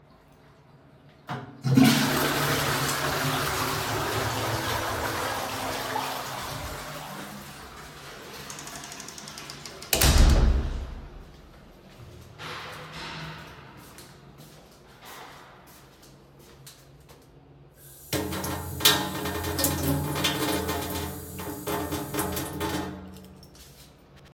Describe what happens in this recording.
i flush the toilet and the door opens and closes. Then i walk towards the sink to wash my hands.